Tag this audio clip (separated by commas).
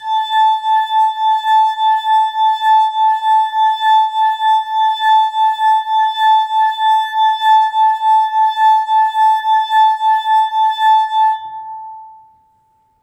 Glass